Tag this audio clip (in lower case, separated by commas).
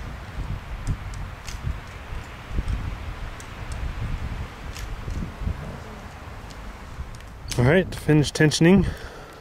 rustling leaves, speech